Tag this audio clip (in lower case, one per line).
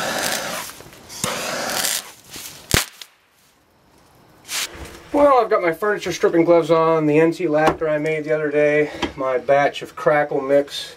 crackle
speech